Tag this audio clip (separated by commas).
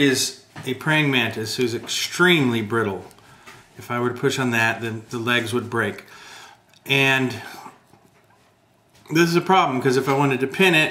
Speech